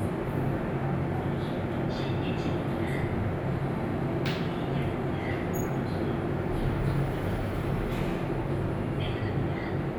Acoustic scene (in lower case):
elevator